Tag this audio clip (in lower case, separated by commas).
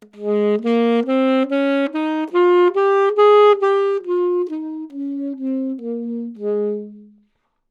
music, musical instrument, wind instrument